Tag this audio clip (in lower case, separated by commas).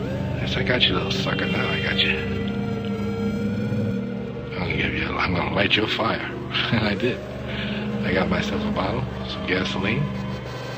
music, speech